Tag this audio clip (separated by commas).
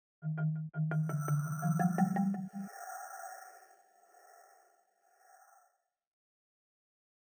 Musical instrument, xylophone, Mallet percussion, Music, Percussion